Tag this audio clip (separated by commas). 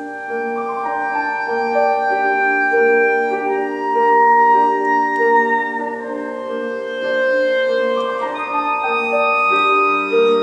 Brass instrument, Clarinet, playing clarinet